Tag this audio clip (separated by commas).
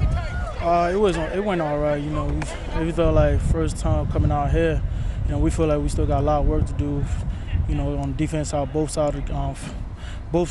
Speech